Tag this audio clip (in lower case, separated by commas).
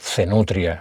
speech, human voice, male speech